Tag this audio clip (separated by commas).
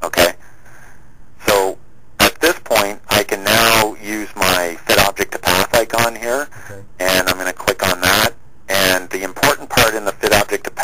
Speech